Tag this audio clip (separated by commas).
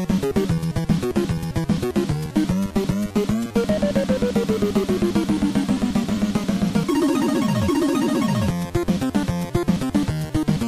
Music, Theme music